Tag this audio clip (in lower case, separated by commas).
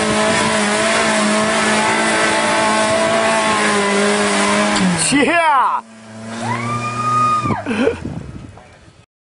vehicle, speech, car